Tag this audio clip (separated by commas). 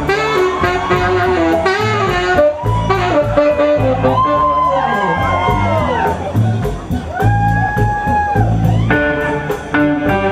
Music